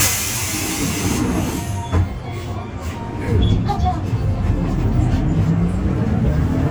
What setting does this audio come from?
bus